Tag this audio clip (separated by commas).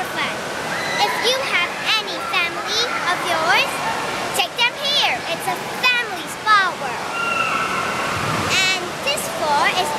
Speech